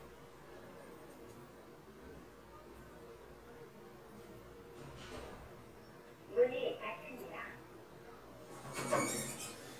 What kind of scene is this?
elevator